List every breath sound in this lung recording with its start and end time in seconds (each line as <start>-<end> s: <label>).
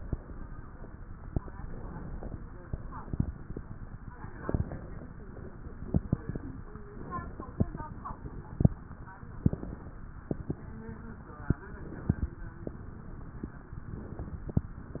1.34-2.33 s: inhalation
1.34-2.33 s: crackles
2.37-4.10 s: exhalation
4.10-5.08 s: inhalation
4.10-5.08 s: crackles
5.15-6.81 s: exhalation
5.15-6.81 s: crackles
6.89-7.88 s: inhalation
6.89-7.88 s: crackles
7.94-9.43 s: exhalation
7.94-9.43 s: crackles
9.45-10.43 s: inhalation
9.45-10.43 s: crackles
10.41-11.66 s: exhalation
10.46-11.66 s: crackles
11.68-12.44 s: inhalation
11.68-12.44 s: crackles
12.49-13.85 s: exhalation
12.49-13.85 s: crackles
13.89-14.76 s: inhalation
13.89-14.76 s: crackles
14.76-15.00 s: exhalation
14.76-15.00 s: crackles